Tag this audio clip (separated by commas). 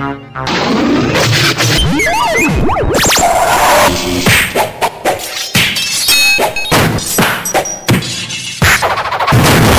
Music, Electronic music, thud